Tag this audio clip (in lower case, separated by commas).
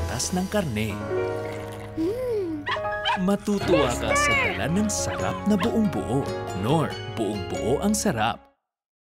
music, speech